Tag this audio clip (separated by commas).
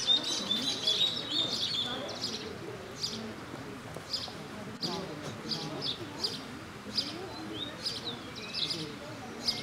Animal, Speech